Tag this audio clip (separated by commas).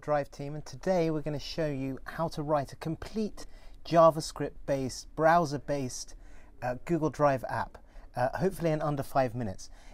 Speech